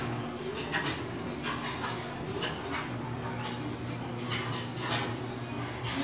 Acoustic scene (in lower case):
restaurant